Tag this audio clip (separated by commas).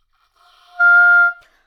Music, Musical instrument, Wind instrument